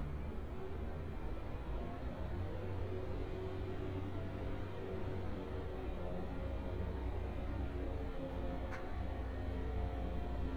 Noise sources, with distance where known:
engine of unclear size, far

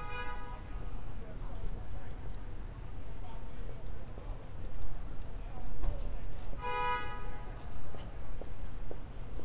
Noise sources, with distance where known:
car horn, near
person or small group talking

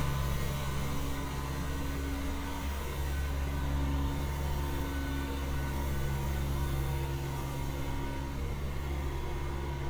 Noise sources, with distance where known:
engine of unclear size, near

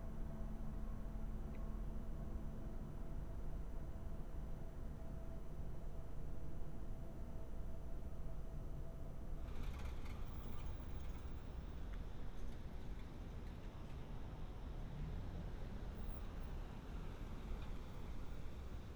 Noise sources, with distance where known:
background noise

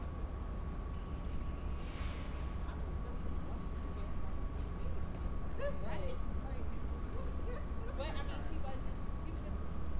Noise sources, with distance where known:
person or small group talking

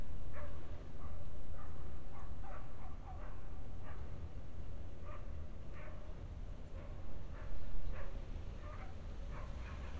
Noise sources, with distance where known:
dog barking or whining, far

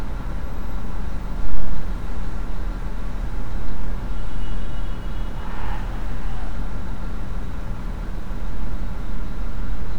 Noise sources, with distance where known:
engine of unclear size, near
car horn, far

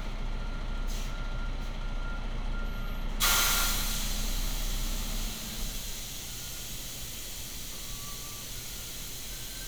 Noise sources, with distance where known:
large-sounding engine, near
reverse beeper

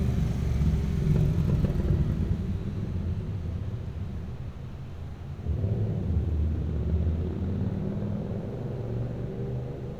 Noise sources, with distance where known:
engine of unclear size, near

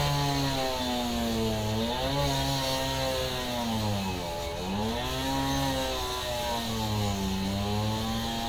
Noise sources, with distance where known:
chainsaw

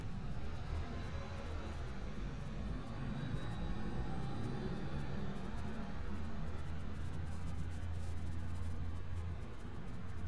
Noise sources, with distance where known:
engine of unclear size, far

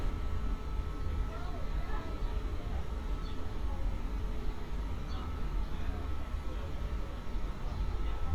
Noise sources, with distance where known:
person or small group talking, far

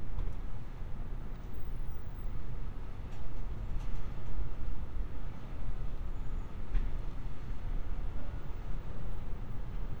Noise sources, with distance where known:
background noise

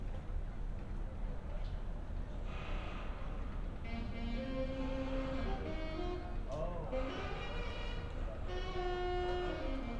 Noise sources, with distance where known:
music from a fixed source

